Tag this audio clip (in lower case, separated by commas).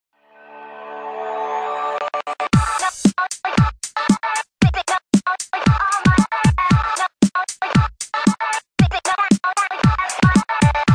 electronica, music